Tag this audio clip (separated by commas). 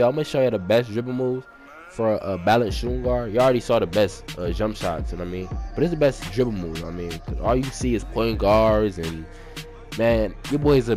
Music, dribble, Speech